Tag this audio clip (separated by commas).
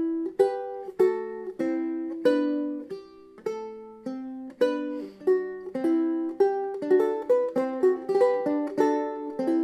Musical instrument, Strum, Music, Guitar, Plucked string instrument